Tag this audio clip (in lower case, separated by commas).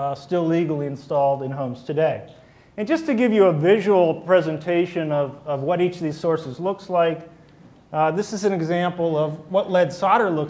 speech